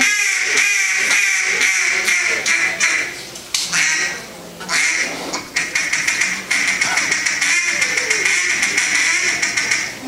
A duck is quacking loudly many times